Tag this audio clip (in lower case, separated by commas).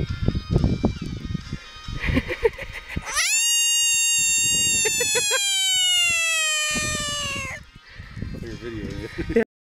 music